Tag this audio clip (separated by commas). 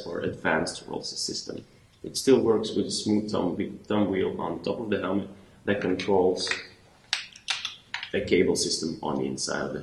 Speech